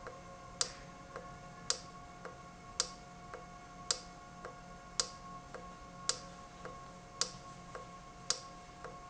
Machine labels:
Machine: valve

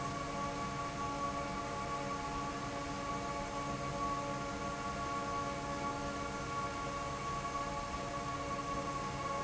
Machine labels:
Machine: fan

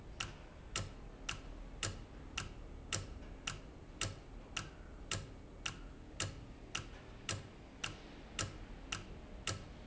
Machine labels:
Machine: valve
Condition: normal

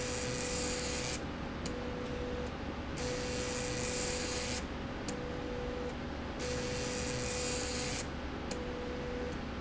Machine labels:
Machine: slide rail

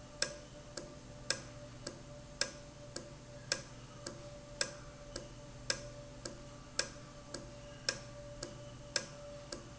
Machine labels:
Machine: valve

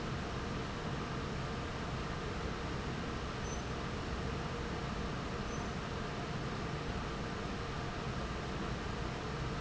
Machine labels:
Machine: fan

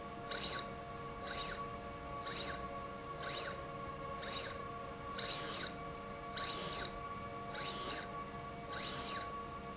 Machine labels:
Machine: slide rail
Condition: abnormal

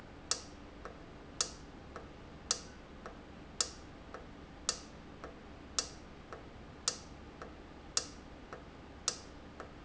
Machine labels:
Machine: valve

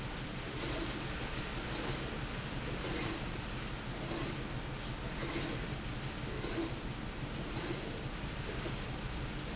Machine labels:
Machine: slide rail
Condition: abnormal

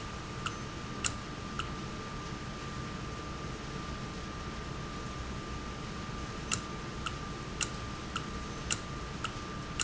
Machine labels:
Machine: valve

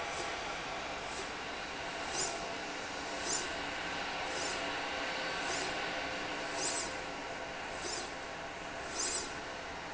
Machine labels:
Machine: slide rail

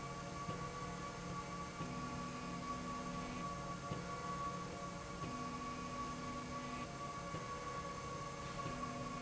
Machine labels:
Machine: slide rail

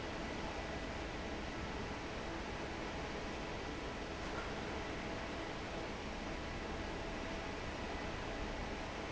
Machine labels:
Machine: fan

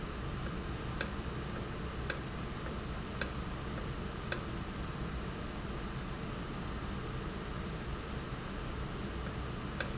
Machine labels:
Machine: valve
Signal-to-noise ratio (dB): -6 dB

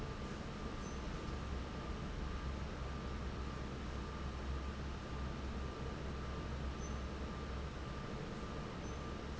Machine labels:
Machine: fan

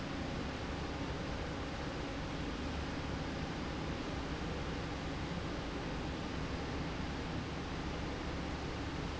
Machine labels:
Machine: slide rail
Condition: normal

